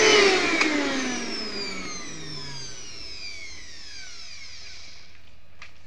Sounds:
home sounds

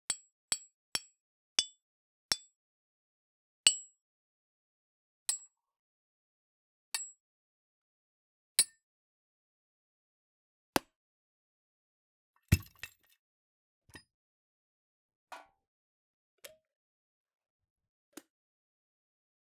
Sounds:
Hammer, Tools

